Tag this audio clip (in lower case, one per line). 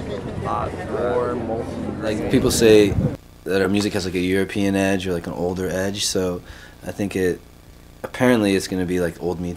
speech